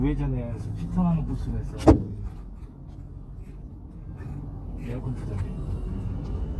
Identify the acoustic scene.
car